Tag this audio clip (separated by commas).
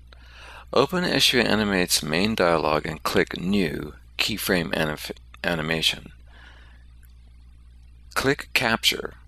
Speech